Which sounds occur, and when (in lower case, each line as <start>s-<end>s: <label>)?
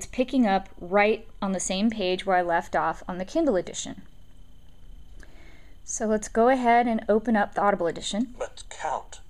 0.0s-9.2s: conversation
0.0s-9.2s: mechanisms
5.2s-5.7s: breathing
5.8s-8.2s: female speech
8.1s-8.1s: clicking
8.4s-9.2s: male speech